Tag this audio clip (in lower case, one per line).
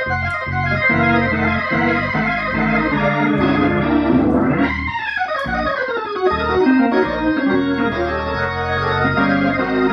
playing hammond organ